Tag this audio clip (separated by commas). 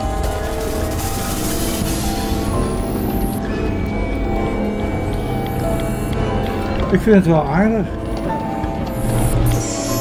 Speech, Music, Background music